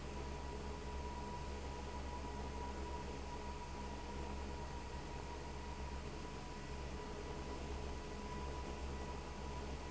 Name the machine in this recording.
fan